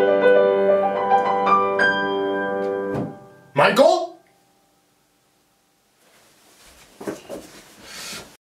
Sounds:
playing bassoon

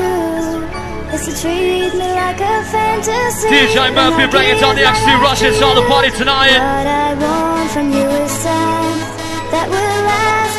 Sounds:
Music

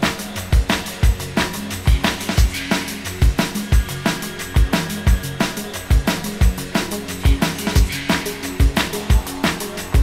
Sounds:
Music

